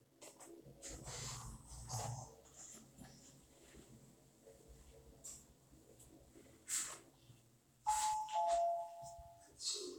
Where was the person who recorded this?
in an elevator